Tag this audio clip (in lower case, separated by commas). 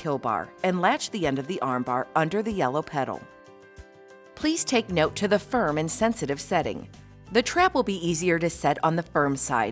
speech, music